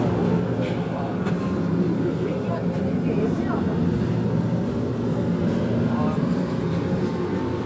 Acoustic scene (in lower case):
subway train